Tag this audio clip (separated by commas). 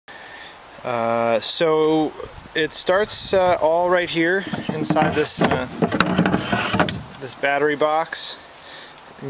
Speech